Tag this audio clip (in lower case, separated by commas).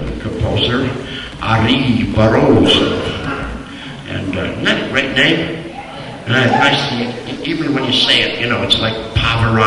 speech, male speech